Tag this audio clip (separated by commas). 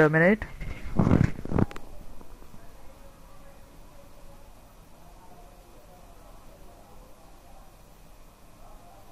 Speech